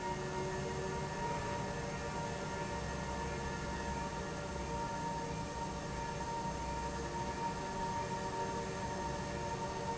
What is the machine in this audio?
pump